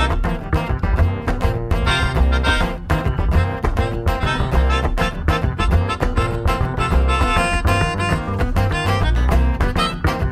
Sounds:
music

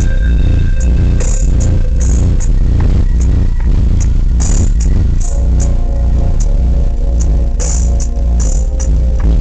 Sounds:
music

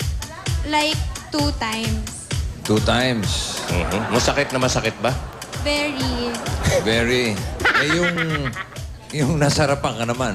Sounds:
speech
music

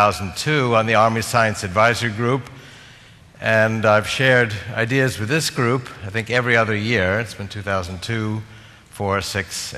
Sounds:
speech

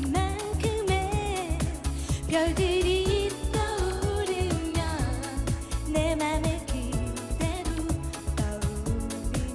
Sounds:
music

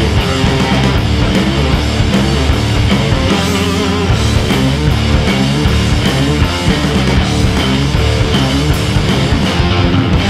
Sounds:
punk rock

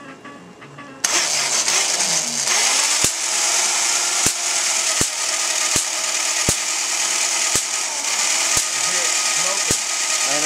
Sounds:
speech

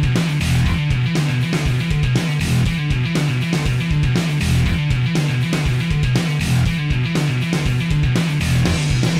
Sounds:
music

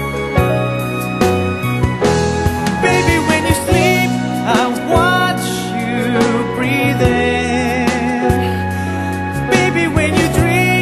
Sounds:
music

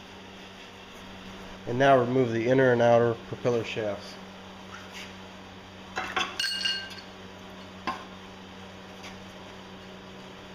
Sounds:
inside a large room or hall
speech

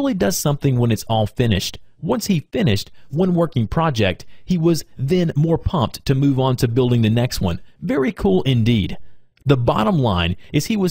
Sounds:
speech

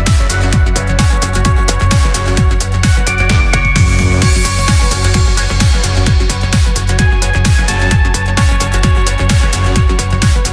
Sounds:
music
trance music

